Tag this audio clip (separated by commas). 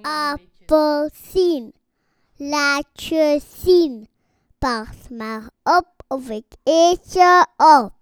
Human voice, Singing